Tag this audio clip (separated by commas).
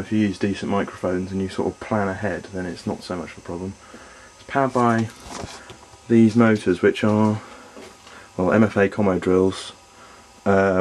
Speech